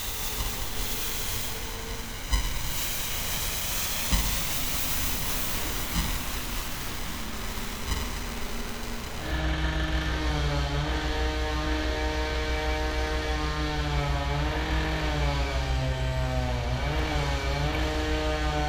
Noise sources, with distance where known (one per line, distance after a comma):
small or medium rotating saw